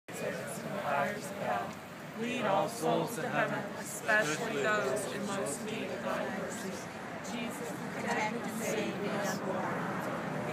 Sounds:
speech

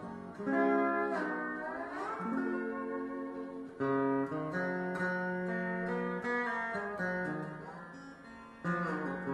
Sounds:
slide guitar, music, bowed string instrument, plucked string instrument, musical instrument

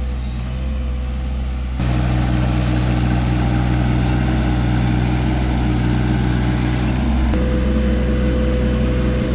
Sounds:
tractor digging

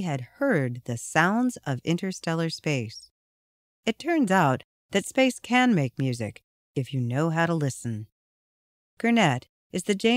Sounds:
speech

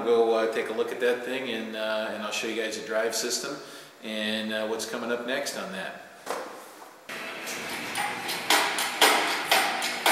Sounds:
speech

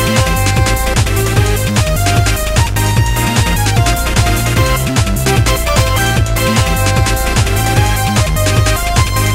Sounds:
music

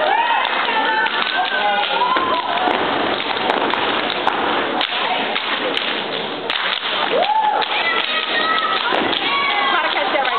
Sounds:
thud, speech

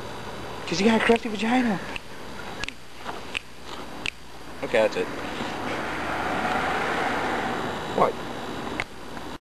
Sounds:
man speaking, speech

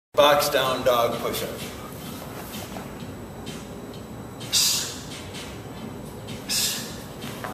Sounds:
music, speech

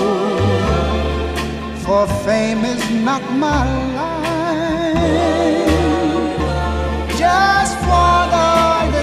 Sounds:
singing, music

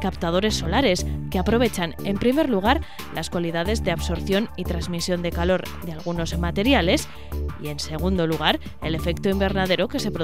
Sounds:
speech, music

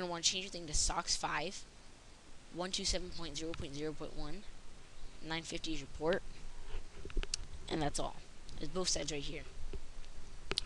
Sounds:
inside a small room, speech

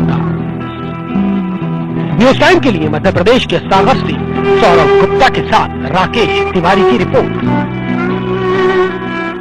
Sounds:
music, slide guitar, speech

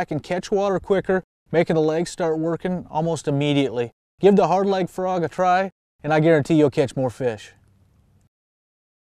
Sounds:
speech

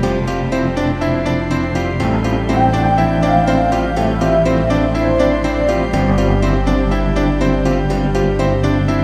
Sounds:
background music

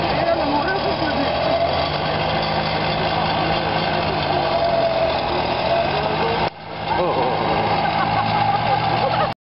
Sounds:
speech

